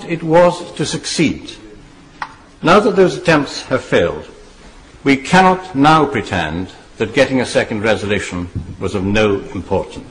A man is giving a speech